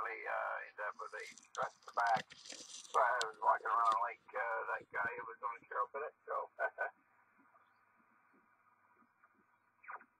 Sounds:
Radio, Speech

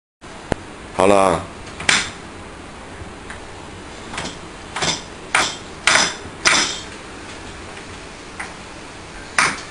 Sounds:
Speech

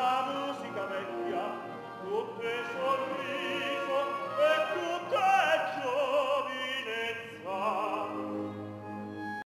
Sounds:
Opera, Music

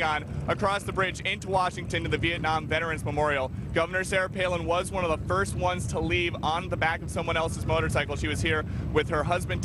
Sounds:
Speech

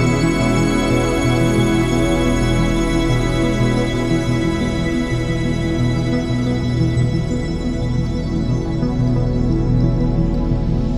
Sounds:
Ambient music, Music

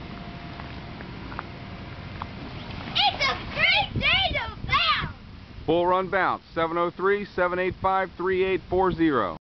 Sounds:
Speech

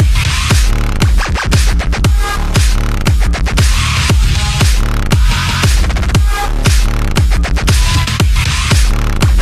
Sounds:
Music, Exciting music

